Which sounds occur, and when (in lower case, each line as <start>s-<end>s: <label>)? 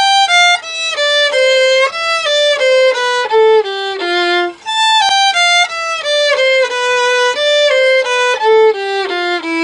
0.0s-9.6s: music